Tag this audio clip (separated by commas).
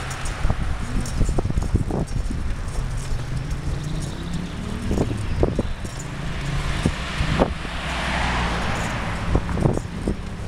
Vehicle